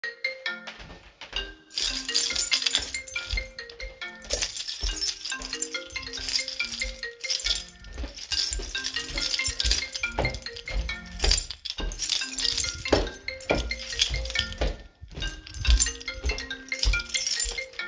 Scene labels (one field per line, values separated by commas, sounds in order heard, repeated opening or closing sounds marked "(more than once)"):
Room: hallway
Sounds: phone ringing, footsteps, keys